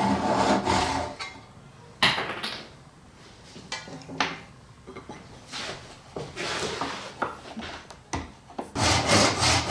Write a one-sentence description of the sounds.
Sawing followed by rustling and clanking and then more rubbing